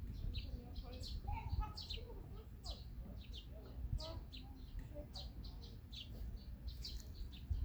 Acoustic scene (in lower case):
park